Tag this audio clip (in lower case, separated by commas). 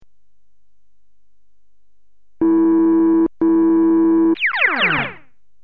musical instrument, music, keyboard (musical)